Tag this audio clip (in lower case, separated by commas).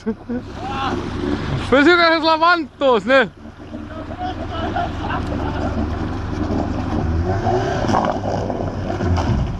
vehicle, speech, boat